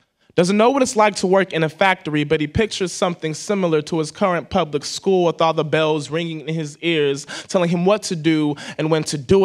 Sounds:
speech

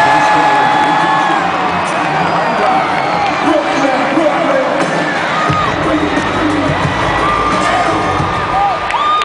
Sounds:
music, speech

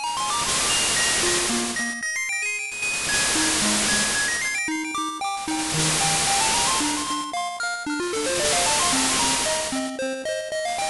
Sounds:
music

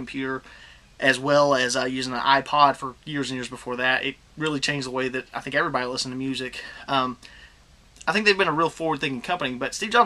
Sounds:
speech, man speaking, narration

